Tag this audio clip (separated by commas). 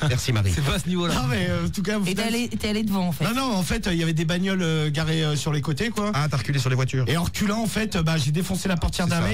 Speech